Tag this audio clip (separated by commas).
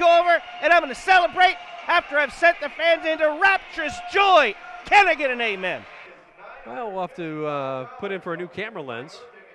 Speech